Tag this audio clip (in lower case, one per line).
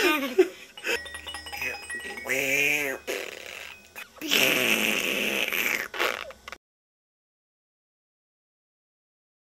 speech